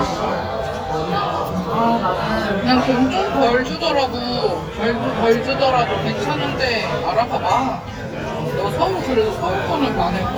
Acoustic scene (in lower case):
crowded indoor space